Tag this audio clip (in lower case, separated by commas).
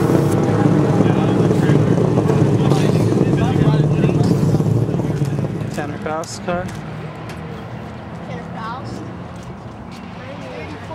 car, motor vehicle (road), vehicle, speech